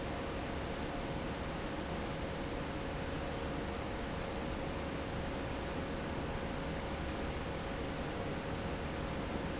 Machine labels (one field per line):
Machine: fan